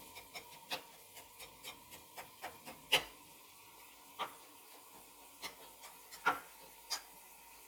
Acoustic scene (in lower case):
kitchen